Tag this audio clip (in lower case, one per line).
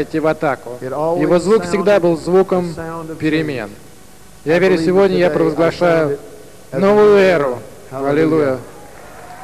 speech